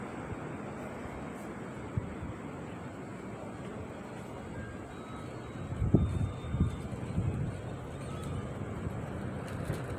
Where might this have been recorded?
on a street